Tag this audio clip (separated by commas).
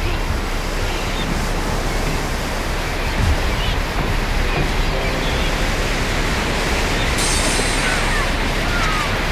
outside, rural or natural, Speech, Waves